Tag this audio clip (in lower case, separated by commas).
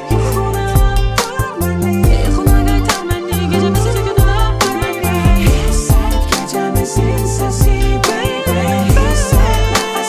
pop music, music